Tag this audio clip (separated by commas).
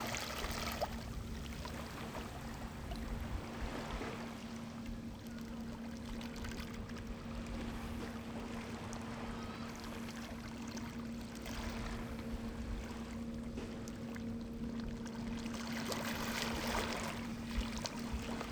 Water, Waves, Ocean